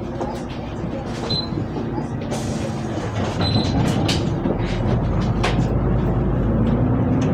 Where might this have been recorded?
on a bus